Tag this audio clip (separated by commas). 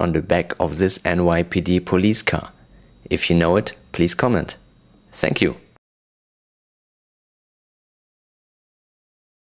Speech